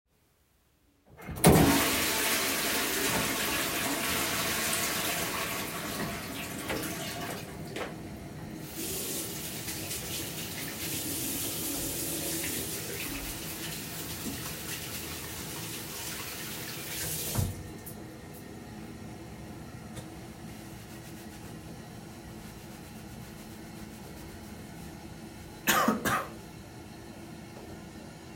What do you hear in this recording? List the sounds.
toilet flushing, footsteps, running water